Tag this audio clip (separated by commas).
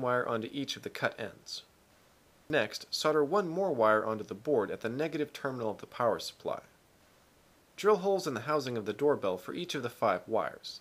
Narration, Speech